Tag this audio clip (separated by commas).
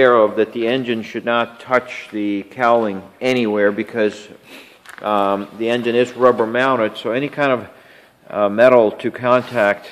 Speech